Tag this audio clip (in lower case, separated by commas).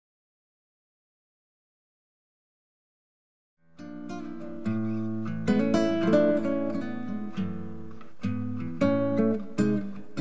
music, acoustic guitar